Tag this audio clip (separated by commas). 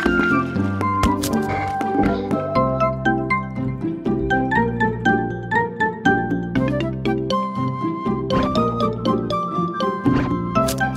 Music